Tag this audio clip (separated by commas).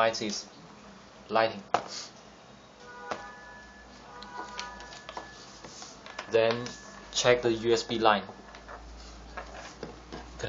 Speech